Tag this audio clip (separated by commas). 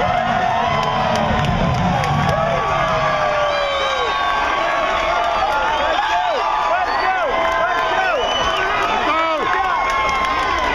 Music, Speech